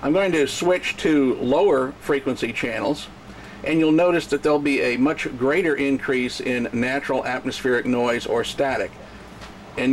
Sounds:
speech

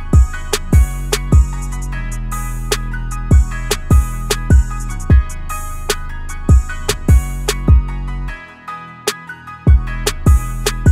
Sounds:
music

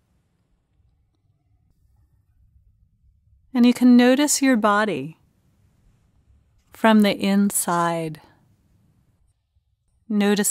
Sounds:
speech

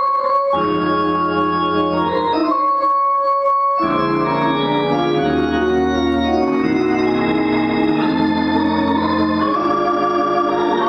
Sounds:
organ
hammond organ

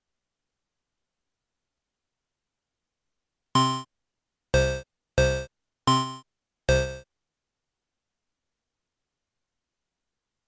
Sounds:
music

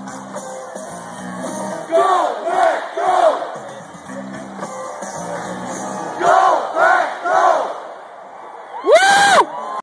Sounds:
music
speech

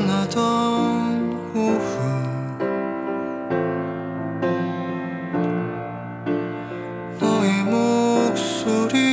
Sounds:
music

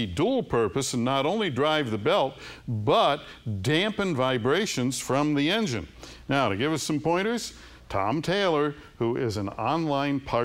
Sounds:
speech

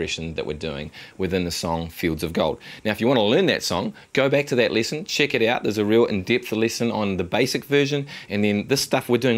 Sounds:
speech

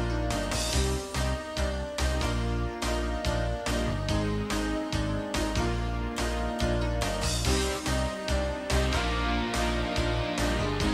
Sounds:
music

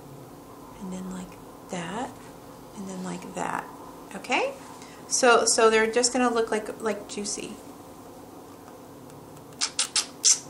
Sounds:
inside a small room
speech

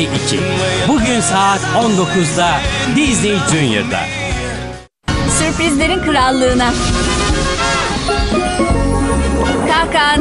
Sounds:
speech
music

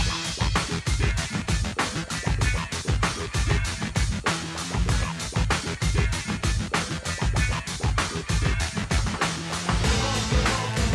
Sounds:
soundtrack music
music

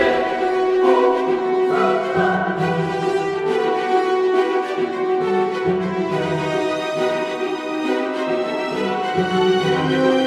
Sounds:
music

